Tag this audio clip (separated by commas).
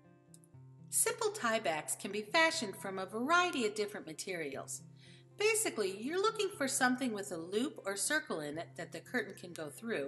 Speech